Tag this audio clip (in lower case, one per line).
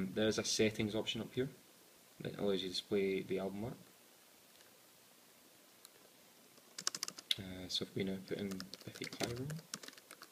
computer keyboard